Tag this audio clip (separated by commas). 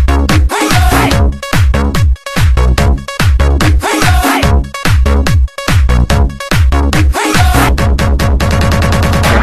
Electronic music, Music, House music